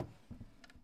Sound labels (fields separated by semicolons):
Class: drawer; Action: opening; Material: wooden